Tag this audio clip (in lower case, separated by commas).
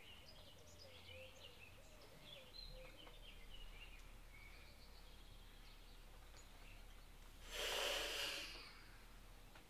bird song, environmental noise